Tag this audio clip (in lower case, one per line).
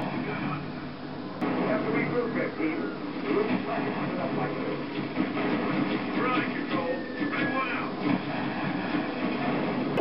speech